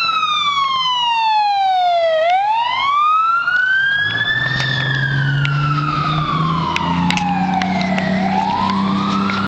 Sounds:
Vehicle

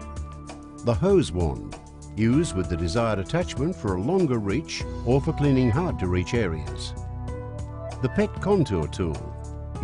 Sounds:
Speech, Music

